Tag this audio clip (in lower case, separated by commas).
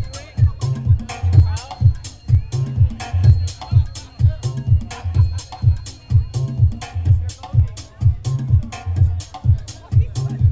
house music, music, speech